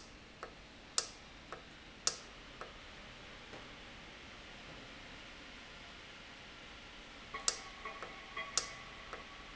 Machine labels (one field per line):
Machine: valve